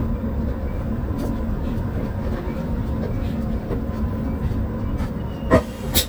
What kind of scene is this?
bus